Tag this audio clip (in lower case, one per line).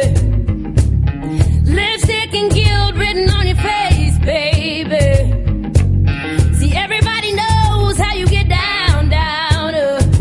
music